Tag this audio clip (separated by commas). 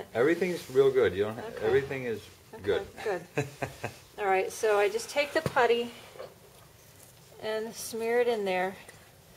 Speech